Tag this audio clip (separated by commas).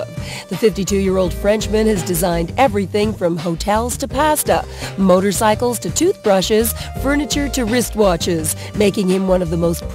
Music, Speech